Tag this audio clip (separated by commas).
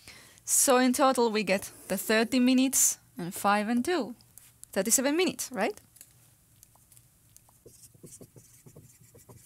Writing, Speech